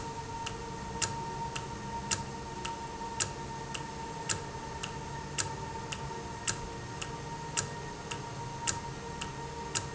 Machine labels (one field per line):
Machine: valve